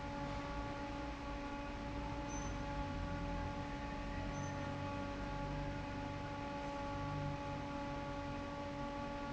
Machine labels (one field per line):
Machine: fan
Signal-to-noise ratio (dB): 0 dB